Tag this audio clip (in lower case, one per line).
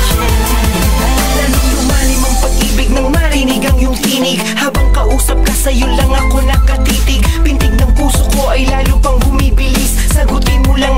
music
exciting music
pop music